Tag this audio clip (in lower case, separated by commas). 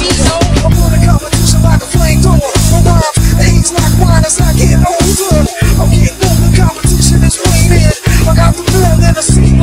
music